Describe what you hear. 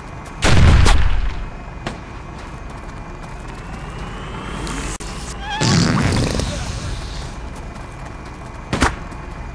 As a vehicle runs a gunshot is fired and something splats